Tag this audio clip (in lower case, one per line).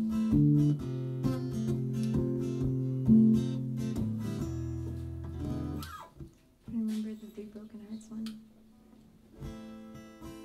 speech
music
tender music